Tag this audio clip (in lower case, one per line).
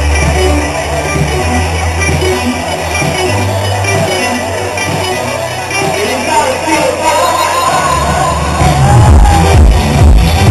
music